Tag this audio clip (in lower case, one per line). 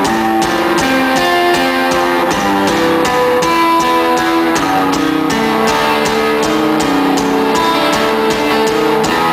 music